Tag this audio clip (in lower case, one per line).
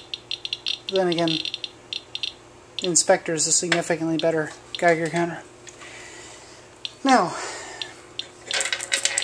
rattle